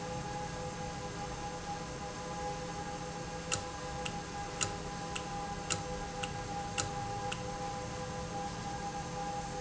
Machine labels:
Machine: valve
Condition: normal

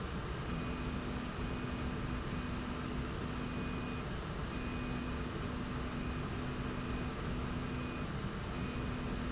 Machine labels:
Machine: slide rail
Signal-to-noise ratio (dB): -6 dB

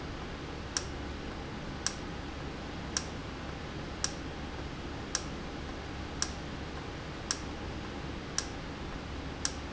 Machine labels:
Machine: valve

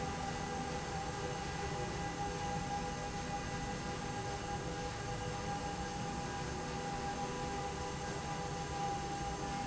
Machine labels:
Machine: slide rail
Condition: normal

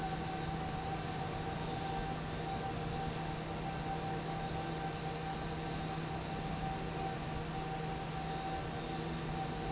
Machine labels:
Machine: fan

